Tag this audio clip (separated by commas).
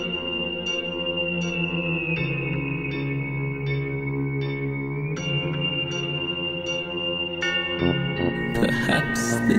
Music, Speech